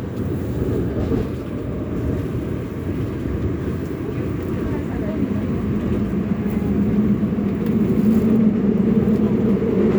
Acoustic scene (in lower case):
subway train